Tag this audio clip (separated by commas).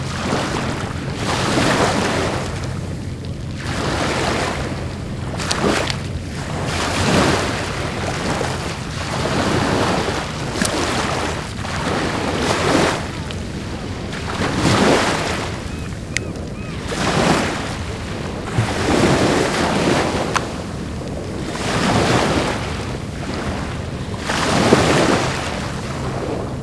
Ocean, Water, Waves